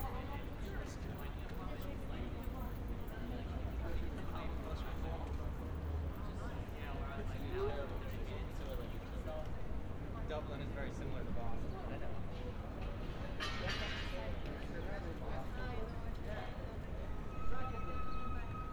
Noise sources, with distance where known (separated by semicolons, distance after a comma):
person or small group talking, near